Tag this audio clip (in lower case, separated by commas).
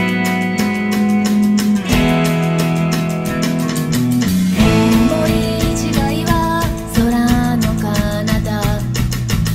guitar, music, strum, musical instrument, plucked string instrument